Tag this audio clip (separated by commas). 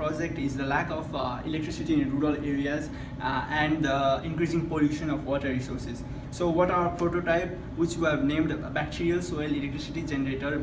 Speech